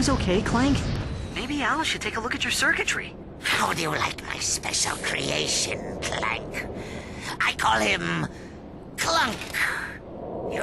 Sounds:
Speech

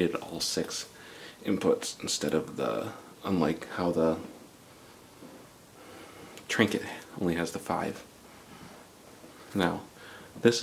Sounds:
Speech

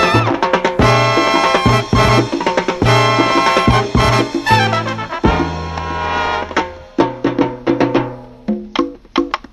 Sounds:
Salsa music, Music

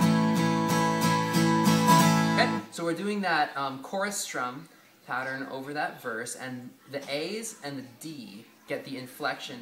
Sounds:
Guitar, Plucked string instrument, Musical instrument, Speech, Music

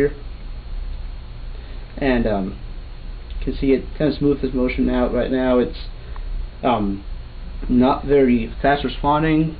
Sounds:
Speech

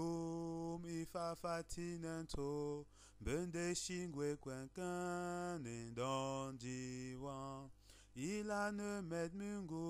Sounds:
Mantra

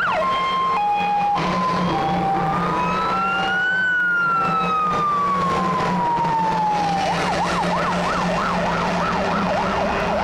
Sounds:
Emergency vehicle, Vehicle, Truck, Fire engine, Motor vehicle (road)

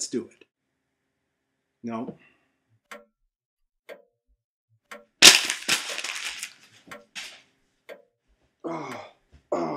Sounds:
Crack, inside a small room, Speech

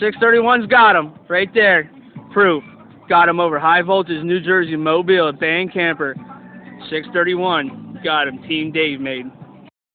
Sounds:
Speech

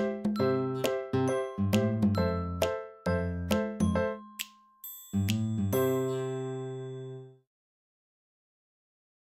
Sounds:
Music, Chink

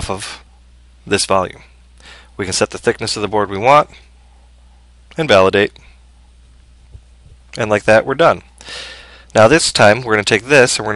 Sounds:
Speech

